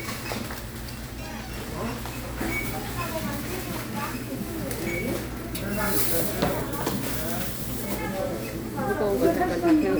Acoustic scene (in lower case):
crowded indoor space